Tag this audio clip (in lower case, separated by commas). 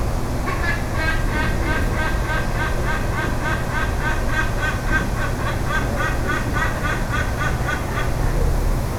animal, bird, wild animals